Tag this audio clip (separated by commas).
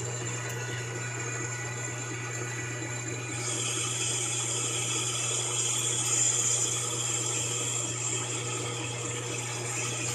lathe spinning